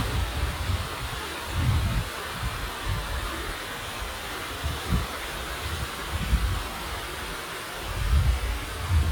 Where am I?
in a park